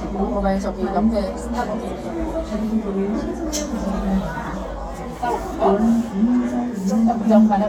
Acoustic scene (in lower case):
crowded indoor space